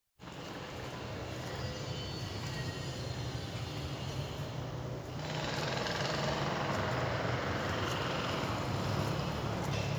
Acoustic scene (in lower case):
residential area